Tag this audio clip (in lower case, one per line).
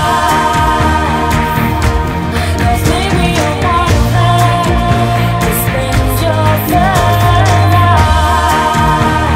music